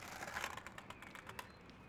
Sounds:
Skateboard, Vehicle

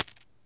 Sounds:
Coin (dropping), home sounds

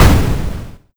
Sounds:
Explosion

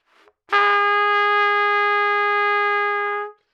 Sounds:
Musical instrument, Trumpet, Music, Brass instrument

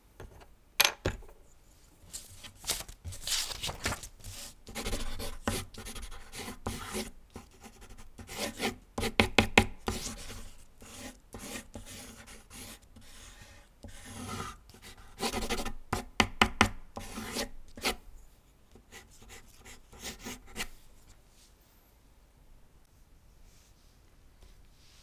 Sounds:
Domestic sounds, Writing

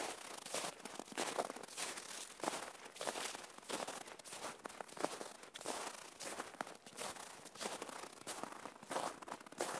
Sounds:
Walk

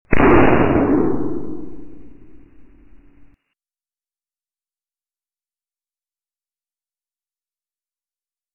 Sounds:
Explosion

